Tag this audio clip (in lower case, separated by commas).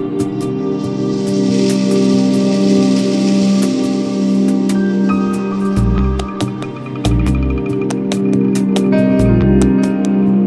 new-age music